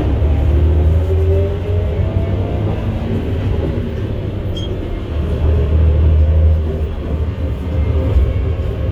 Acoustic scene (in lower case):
bus